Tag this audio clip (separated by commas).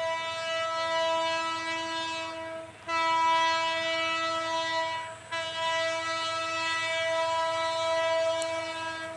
train wagon, Vehicle, outside, urban or man-made, Train